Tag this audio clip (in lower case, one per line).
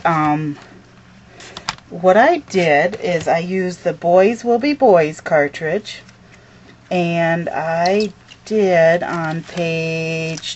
speech